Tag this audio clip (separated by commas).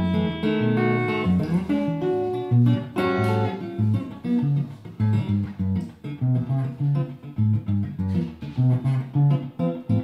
Strum, Music, Bass guitar, Musical instrument, Guitar, Plucked string instrument